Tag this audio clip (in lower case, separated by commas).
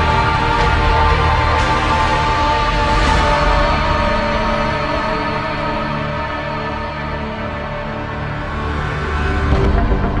scary music, music